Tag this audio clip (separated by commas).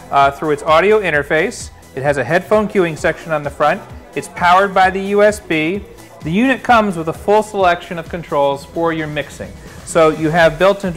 Music, Speech